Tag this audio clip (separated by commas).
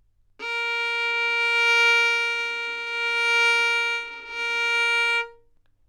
Bowed string instrument, Music, Musical instrument